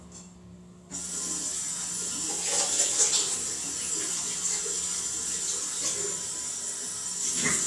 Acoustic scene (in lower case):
restroom